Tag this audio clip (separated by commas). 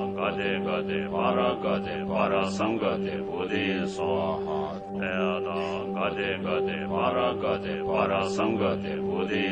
Music, Mantra